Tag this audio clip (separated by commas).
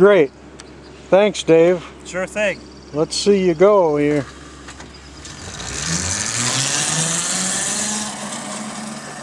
Speech, Vehicle